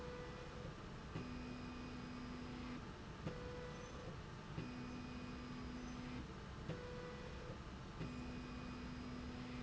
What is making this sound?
slide rail